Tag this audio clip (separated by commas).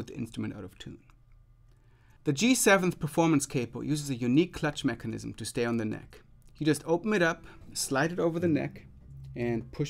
Speech